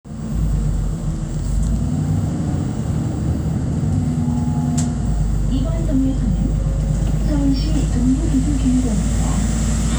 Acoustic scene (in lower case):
bus